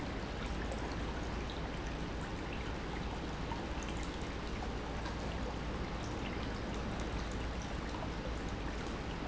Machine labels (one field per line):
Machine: pump